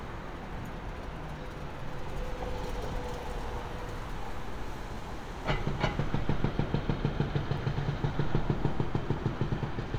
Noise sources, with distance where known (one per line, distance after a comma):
engine of unclear size
hoe ram